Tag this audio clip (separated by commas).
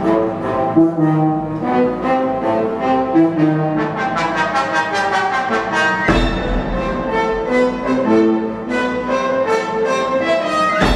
Brass instrument, French horn